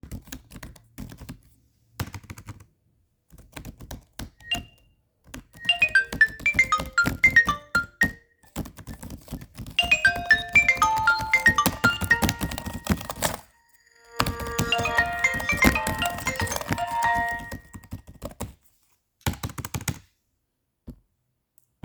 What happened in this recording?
I was arguing with a friend on Discord. Suddenly my nokia lumia 1020 stats ringing.